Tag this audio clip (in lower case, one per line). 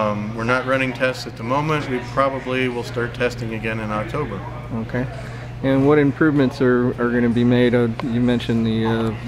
speech